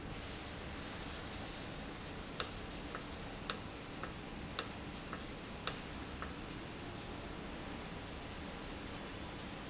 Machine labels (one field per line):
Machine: valve